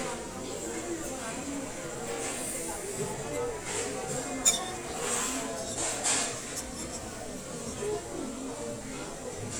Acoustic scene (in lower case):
restaurant